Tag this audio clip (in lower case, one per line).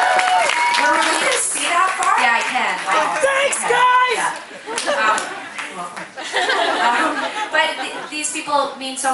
speech